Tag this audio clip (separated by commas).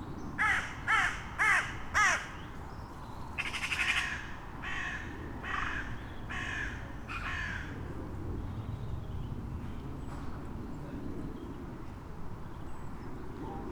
Bird, Animal, Wild animals, Crow